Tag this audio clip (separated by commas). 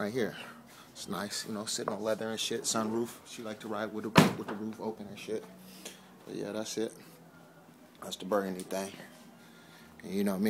Speech